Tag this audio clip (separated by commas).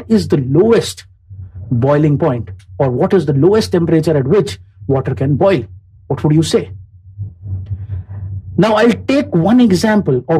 Speech